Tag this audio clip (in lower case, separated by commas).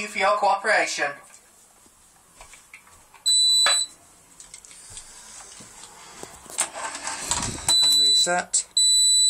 speech